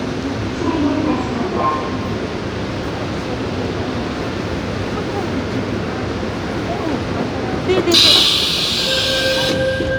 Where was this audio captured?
on a subway train